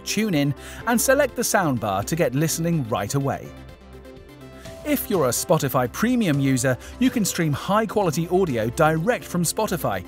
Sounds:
speech, music

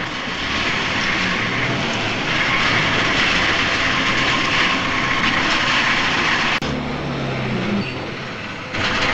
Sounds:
truck, vehicle

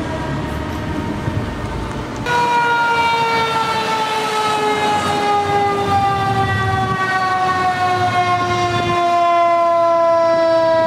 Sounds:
fire truck siren

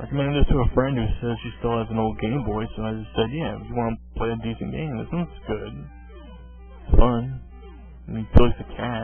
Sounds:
speech, music

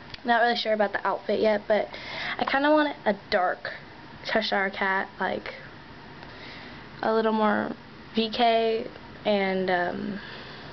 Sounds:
speech

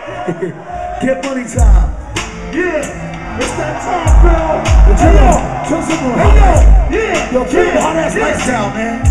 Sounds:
music, speech

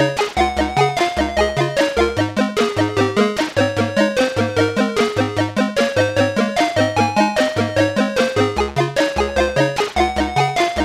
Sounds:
video game music, music

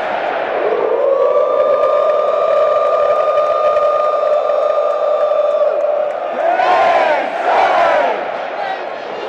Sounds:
speech

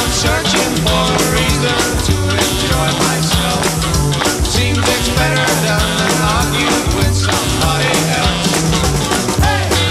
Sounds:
music

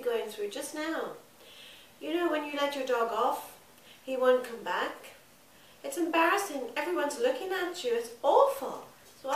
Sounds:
speech

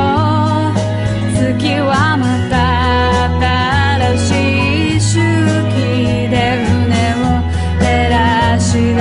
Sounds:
music

